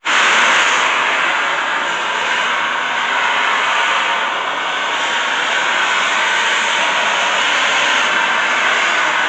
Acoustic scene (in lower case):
street